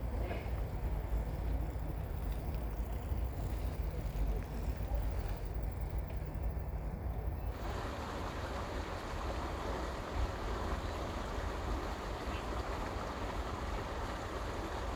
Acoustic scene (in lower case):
park